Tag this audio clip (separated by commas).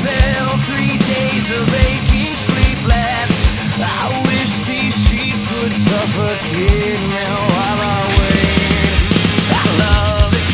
Music